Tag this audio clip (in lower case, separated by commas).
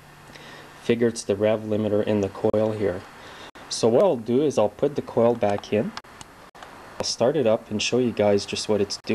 speech